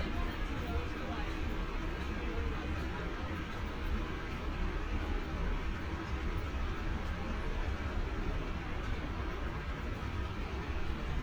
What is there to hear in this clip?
engine of unclear size, person or small group talking